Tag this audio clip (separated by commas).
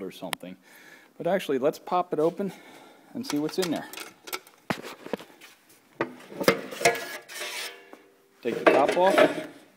Speech